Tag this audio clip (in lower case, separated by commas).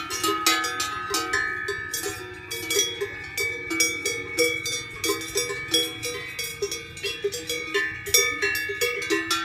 bovinae cowbell